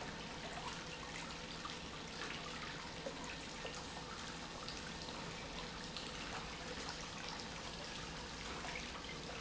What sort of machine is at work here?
pump